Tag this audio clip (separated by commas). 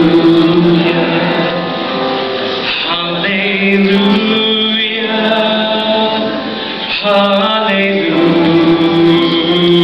Male singing, Music